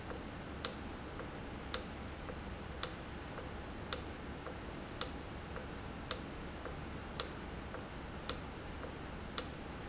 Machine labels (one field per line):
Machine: valve